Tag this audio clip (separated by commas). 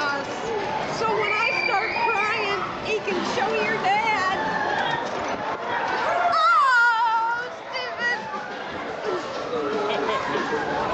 Speech